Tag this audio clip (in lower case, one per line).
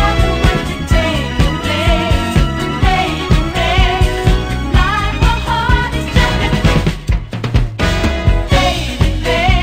music